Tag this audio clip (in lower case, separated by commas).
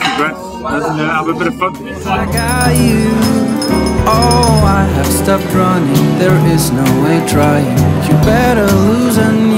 speech, music